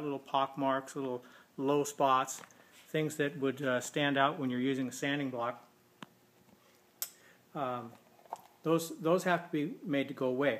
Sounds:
Speech

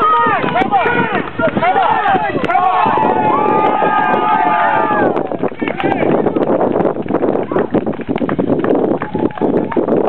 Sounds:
Speech

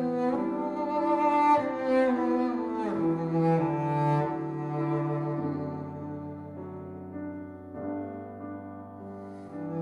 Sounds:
Music, Double bass

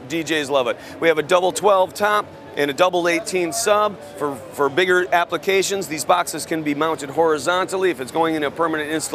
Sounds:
Speech

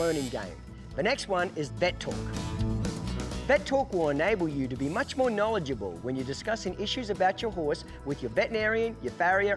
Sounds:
Music, Speech

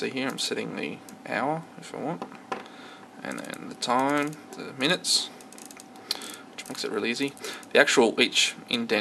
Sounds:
Speech, Tick-tock

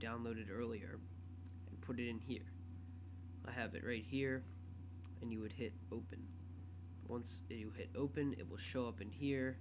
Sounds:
Speech

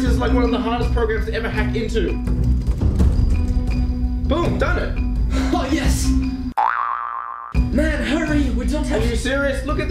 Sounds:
Music, inside a small room, Speech

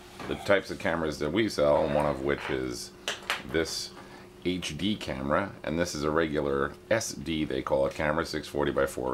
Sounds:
Speech

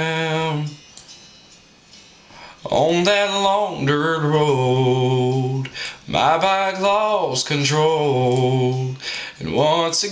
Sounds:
Music

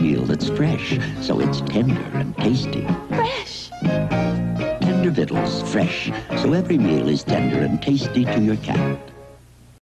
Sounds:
Speech, Music

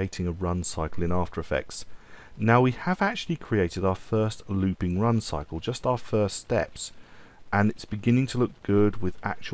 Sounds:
Speech

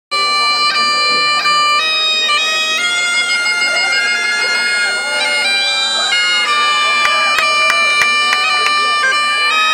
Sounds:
Wind instrument, Bagpipes

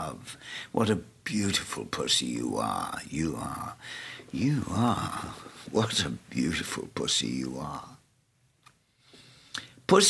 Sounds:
Speech

